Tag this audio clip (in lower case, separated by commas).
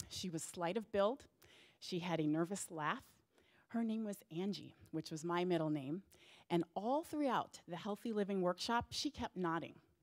speech